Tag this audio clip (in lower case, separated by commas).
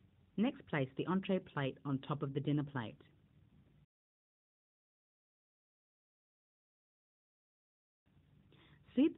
speech